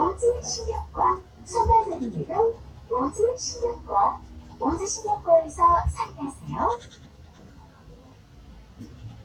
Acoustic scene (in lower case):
bus